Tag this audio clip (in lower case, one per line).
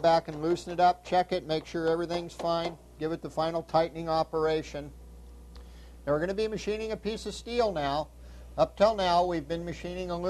speech